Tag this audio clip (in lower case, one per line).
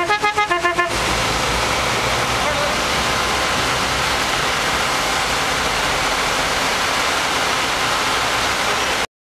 car
vehicle